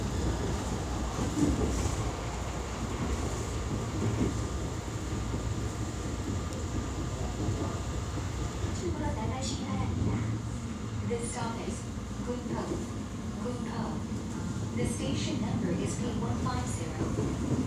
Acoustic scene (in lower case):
subway train